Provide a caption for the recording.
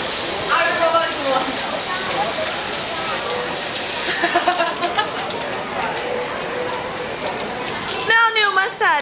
People speak, water runs